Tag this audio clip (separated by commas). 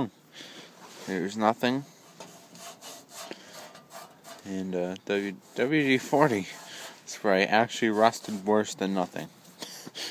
Speech